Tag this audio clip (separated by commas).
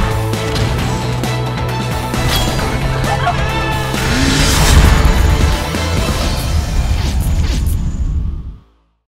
Music